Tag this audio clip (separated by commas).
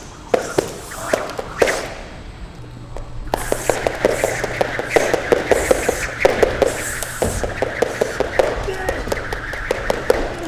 rope skipping